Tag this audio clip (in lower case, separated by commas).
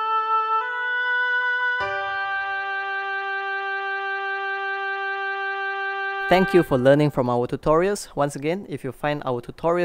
playing oboe